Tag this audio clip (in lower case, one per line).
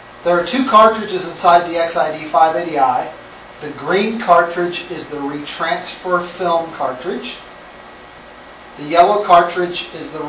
speech